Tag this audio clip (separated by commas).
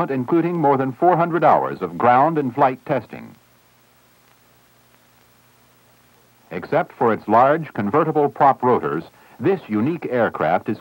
Speech